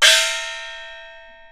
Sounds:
percussion, music, musical instrument, gong

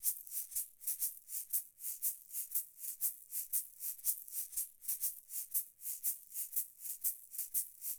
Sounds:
rattle (instrument), musical instrument, percussion, music

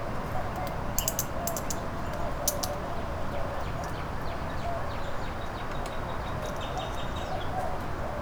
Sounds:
bird, wild animals, animal

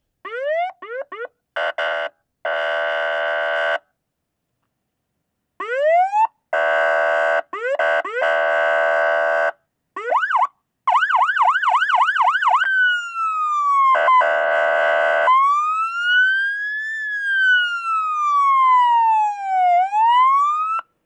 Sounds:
alarm, motor vehicle (road), vehicle, siren

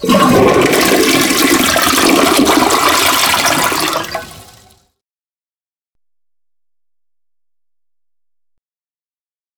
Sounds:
toilet flush, domestic sounds

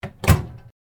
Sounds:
microwave oven, domestic sounds

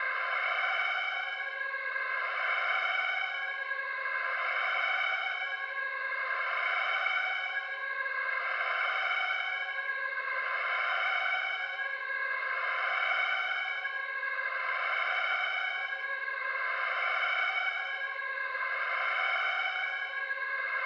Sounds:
alarm

